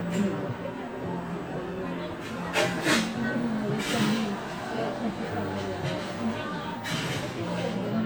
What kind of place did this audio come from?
cafe